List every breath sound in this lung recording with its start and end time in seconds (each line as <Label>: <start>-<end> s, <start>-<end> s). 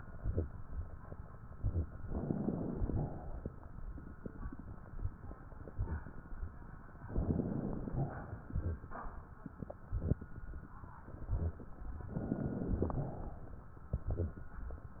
Inhalation: 2.05-2.90 s, 7.12-7.93 s, 12.11-12.94 s
Exhalation: 2.92-3.51 s, 7.95-8.54 s, 12.94-13.72 s
Crackles: 2.05-2.90 s, 7.12-7.93 s, 12.11-12.94 s